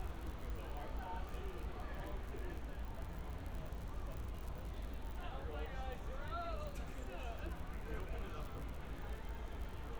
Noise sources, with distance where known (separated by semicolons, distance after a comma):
person or small group talking, near